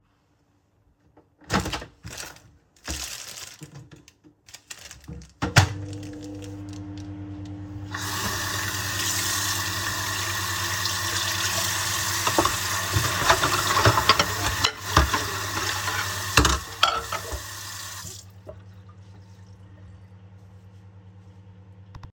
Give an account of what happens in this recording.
I was in the kitchen preparing a late snack. The microwave was used while dishes and cutlery were being handled nearby. Running water from the sink was also audible during the scene.